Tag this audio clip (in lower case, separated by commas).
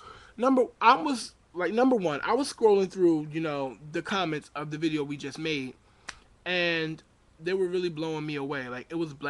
speech